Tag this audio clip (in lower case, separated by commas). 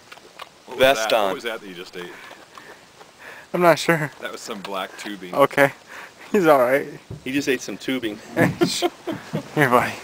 speech